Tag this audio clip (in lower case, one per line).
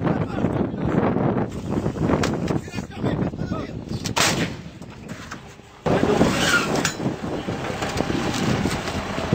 gunshot
artillery fire